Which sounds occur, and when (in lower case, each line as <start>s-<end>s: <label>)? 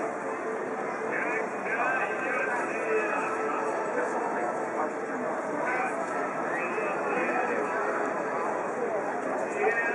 0.0s-9.9s: crowd